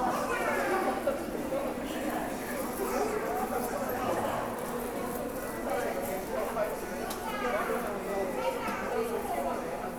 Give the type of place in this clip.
subway station